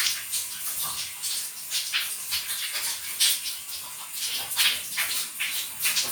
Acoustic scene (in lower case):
restroom